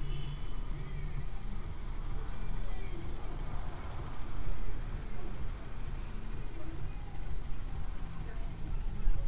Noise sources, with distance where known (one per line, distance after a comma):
car horn, far